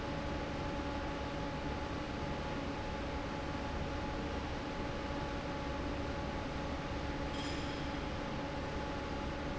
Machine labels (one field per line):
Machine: fan